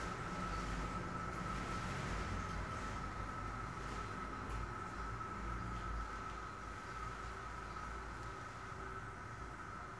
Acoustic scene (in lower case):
restroom